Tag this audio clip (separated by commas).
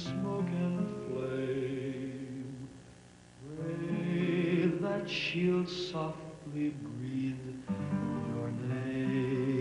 Music